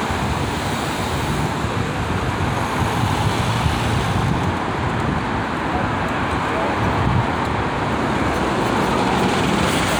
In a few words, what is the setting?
street